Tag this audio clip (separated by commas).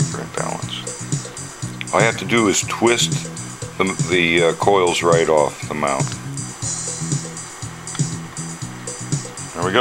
Music, Speech